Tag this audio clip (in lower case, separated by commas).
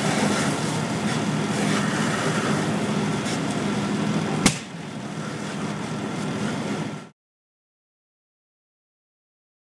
vehicle, car